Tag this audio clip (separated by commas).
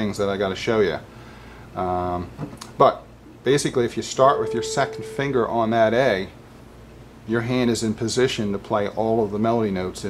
Piano, Keyboard (musical), inside a small room, Musical instrument, Music, Speech